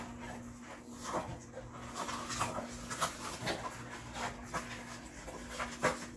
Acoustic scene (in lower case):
kitchen